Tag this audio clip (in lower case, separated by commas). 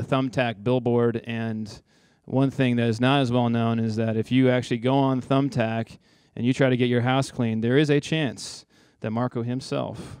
speech